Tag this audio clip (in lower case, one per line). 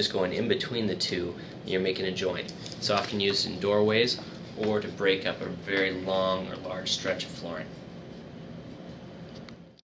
speech